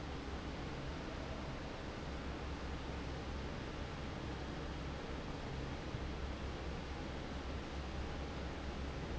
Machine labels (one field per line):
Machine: fan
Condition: normal